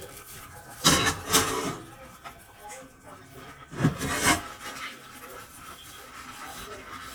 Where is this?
in a kitchen